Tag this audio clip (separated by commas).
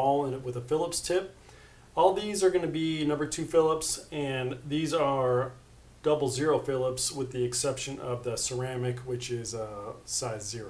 Speech